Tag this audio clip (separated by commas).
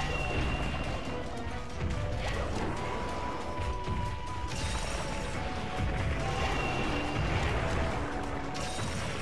Music